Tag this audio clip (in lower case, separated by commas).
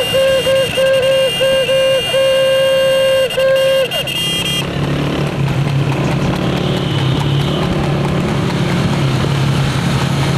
clip-clop